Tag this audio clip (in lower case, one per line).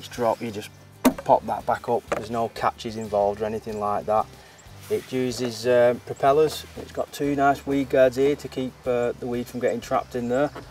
speech
music